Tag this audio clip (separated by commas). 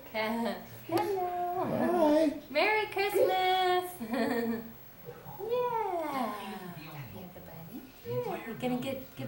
Speech